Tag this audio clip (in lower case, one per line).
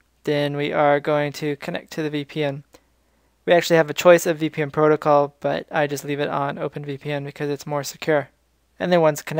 speech